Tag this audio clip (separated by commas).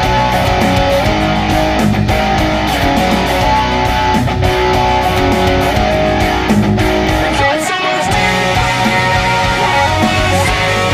Acoustic guitar, Musical instrument, Music, Guitar